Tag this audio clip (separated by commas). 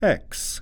Speech, man speaking, Human voice